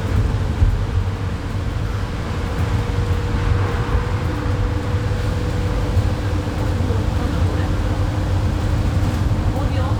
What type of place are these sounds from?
bus